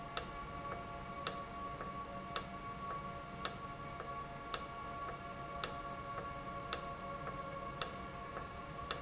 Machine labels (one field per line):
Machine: valve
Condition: normal